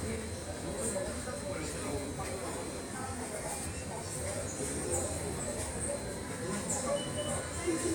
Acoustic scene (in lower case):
subway station